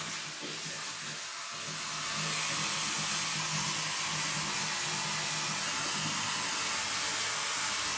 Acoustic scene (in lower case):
restroom